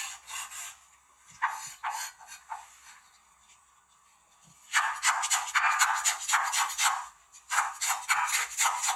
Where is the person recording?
in a kitchen